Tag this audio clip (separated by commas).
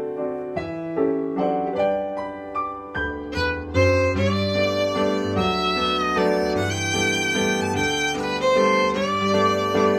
Musical instrument, Violin, Music, Pizzicato